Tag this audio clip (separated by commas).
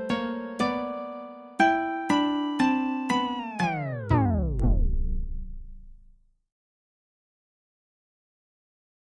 Music